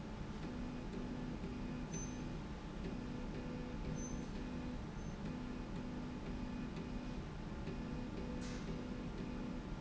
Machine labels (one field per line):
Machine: slide rail